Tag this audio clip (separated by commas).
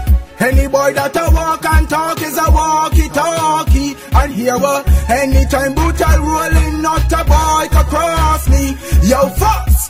Music